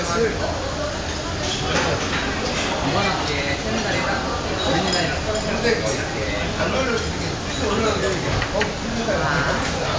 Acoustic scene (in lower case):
crowded indoor space